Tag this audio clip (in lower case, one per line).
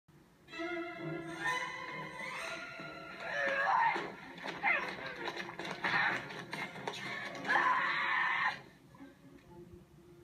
music
whinny